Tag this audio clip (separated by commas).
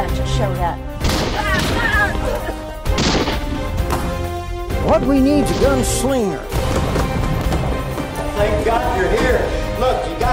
Music, Speech